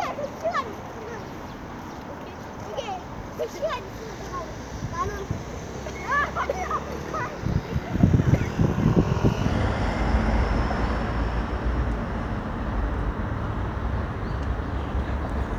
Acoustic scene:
street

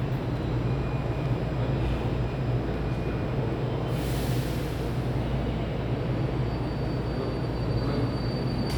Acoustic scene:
subway station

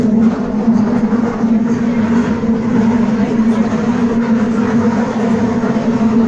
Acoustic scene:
subway train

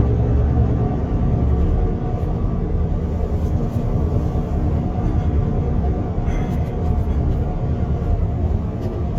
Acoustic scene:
car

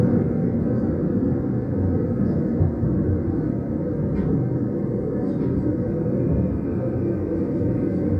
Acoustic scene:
subway train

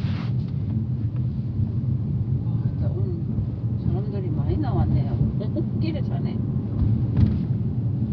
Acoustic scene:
car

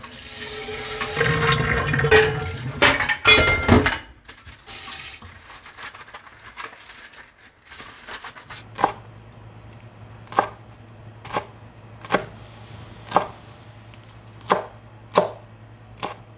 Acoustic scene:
kitchen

